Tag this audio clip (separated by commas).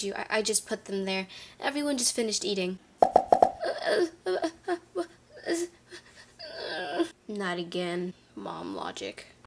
Speech